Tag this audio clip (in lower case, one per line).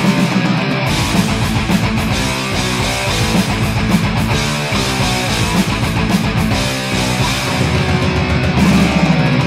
music
heavy metal